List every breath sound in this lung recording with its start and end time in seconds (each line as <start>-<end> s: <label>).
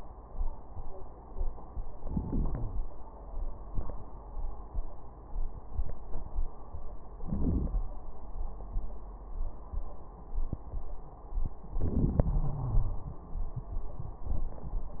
2.00-2.86 s: inhalation
7.21-7.91 s: inhalation
11.79-13.26 s: inhalation
12.23-13.24 s: wheeze